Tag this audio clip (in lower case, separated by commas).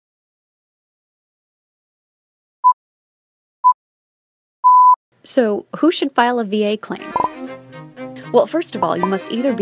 speech, music